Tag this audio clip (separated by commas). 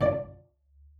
Music, Musical instrument, Bowed string instrument